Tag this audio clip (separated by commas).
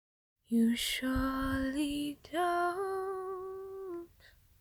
Human voice, Singing, Female singing